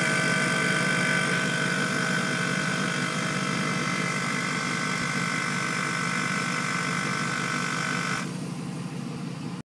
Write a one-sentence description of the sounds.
Mechanical vibration